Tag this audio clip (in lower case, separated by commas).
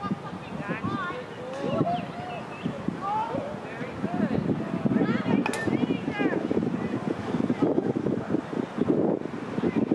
speech, animal